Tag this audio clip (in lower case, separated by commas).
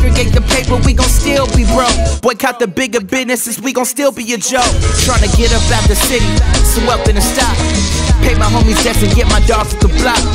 music of africa, music